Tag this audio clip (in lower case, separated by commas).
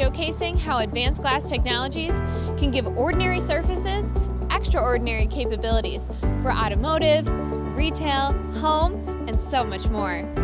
speech, music